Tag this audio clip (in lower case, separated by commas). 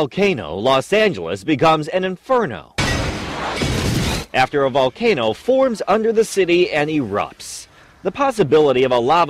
explosion, speech